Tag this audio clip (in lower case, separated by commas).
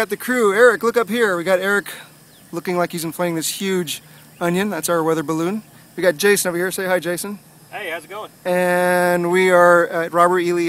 speech